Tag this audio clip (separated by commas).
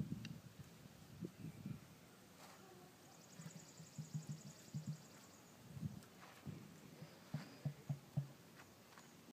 Bird